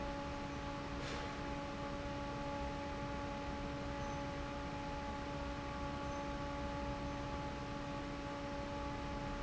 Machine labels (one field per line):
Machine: fan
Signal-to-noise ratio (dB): 0 dB